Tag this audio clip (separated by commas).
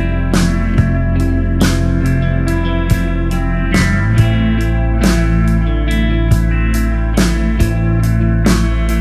Music